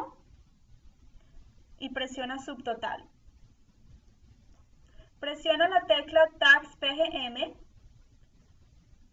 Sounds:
Speech

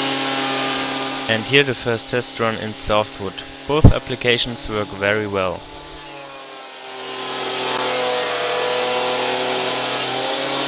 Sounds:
Speech, Drill

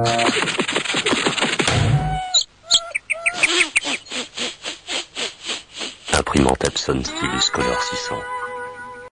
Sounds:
Speech, Music

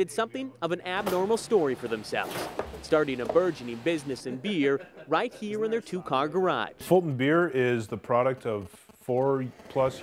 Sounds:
Speech

